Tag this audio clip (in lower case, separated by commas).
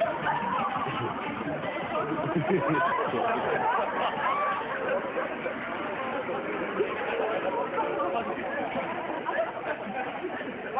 speech